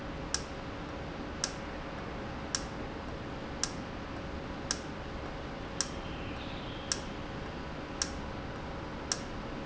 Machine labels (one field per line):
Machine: valve